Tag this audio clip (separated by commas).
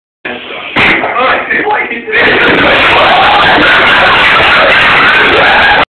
Speech, Explosion